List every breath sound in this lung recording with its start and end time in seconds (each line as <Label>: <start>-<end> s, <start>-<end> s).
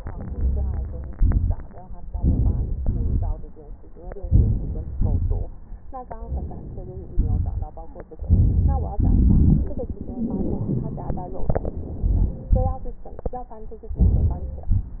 Inhalation: 0.00-1.10 s, 2.09-2.82 s, 4.23-4.99 s, 6.15-7.11 s, 11.39-12.49 s, 13.97-14.72 s
Exhalation: 1.10-1.66 s, 2.82-3.58 s, 4.97-5.73 s, 7.14-8.09 s, 8.99-11.39 s, 12.49-13.47 s, 14.72-15.00 s
Crackles: 1.09-1.68 s, 2.06-2.79 s, 2.81-3.61 s, 4.19-4.96 s, 4.97-5.74 s, 7.10-8.11 s, 8.99-11.37 s, 12.48-13.47 s, 14.71-15.00 s